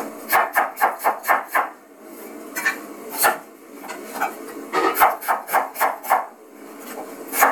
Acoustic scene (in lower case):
kitchen